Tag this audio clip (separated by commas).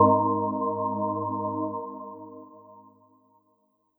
Organ, Music, Keyboard (musical), Musical instrument